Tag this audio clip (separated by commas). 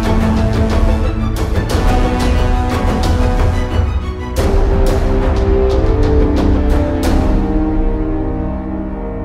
Music